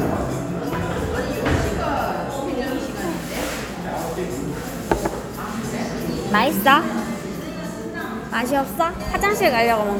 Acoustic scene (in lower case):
cafe